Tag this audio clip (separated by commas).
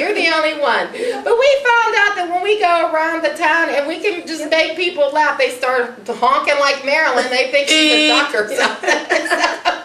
Speech